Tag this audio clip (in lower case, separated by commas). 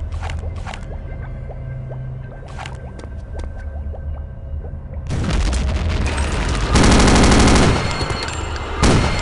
inside a large room or hall